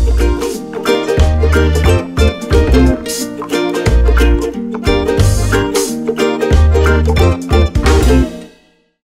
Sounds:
music

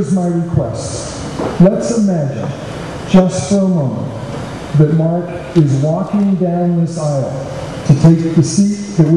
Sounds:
speech
male speech

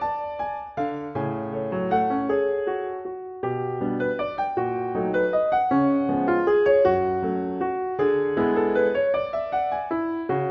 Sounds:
piano

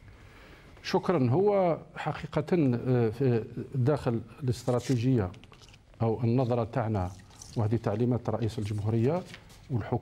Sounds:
speech

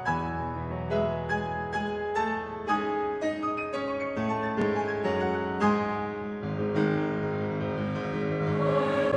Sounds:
choir
piano

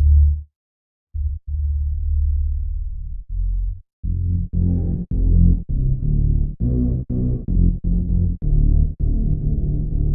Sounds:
electronic music
drum and bass
music

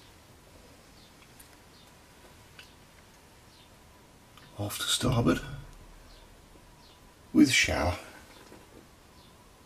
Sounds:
speech

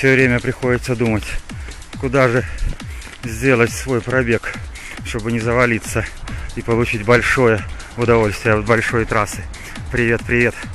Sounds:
outside, urban or man-made
speech
music

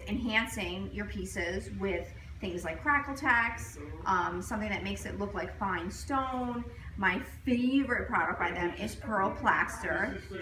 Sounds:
speech

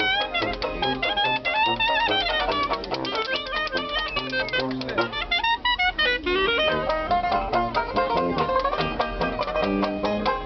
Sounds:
playing washboard

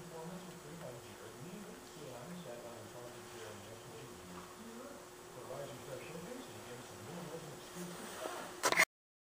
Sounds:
speech

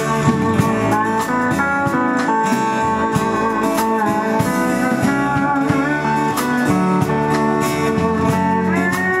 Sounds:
musical instrument
music

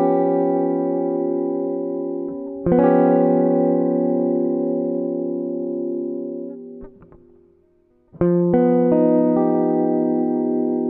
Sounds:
musical instrument
strum
jazz
music
guitar
plucked string instrument

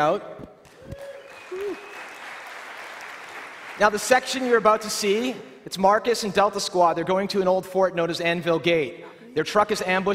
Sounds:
speech

